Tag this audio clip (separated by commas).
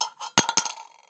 Coin (dropping), Domestic sounds